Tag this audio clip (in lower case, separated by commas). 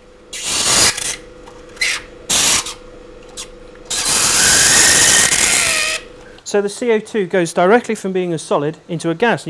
inside a small room, speech